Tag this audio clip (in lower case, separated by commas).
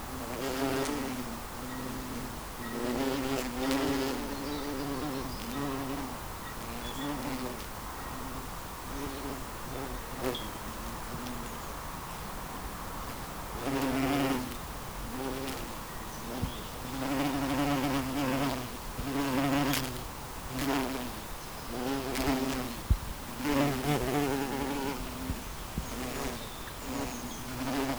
wild animals, insect, animal